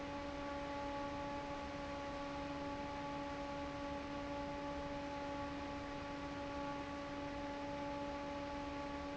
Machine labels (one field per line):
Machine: fan